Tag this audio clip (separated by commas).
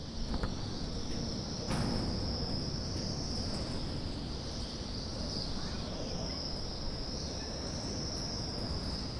Wind